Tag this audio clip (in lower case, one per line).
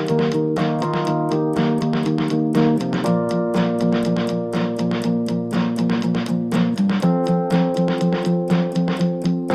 music